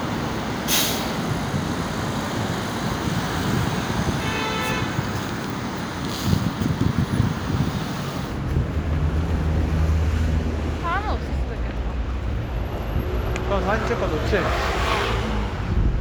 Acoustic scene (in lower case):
street